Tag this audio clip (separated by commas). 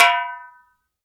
Drum, Percussion, Music, Musical instrument